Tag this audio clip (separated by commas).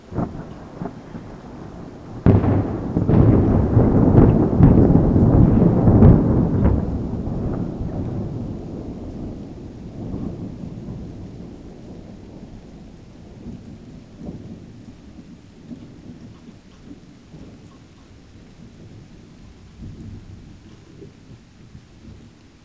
Thunder, Thunderstorm